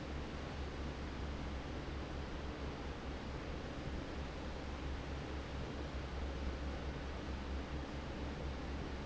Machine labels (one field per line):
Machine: fan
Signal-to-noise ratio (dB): 0 dB